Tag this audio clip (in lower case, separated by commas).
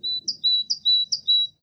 wild animals, bird song, animal, bird